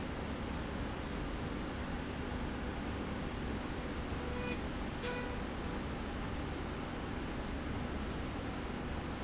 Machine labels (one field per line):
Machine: slide rail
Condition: normal